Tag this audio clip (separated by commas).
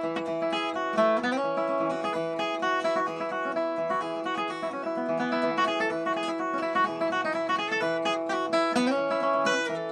Music, slide guitar